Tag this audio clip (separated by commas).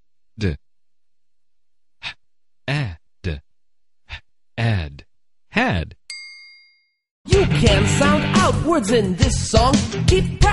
Music, Speech